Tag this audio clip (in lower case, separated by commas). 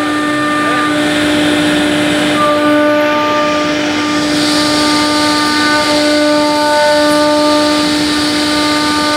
planing timber